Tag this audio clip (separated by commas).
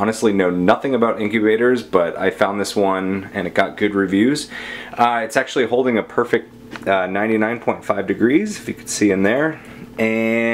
Speech